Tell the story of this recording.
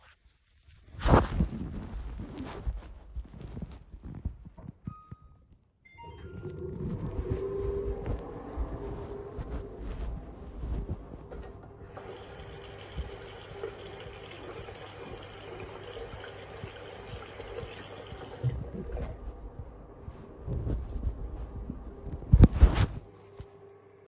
I started the microwave and then walked to the sink to wash my hands.